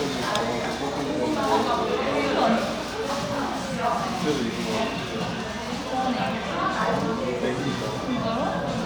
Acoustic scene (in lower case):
cafe